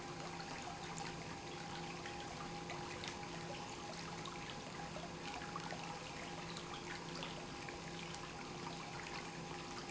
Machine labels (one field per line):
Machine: pump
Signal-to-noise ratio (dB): 6 dB